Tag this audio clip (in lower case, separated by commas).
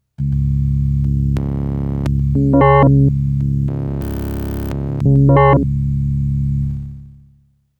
musical instrument, keyboard (musical), music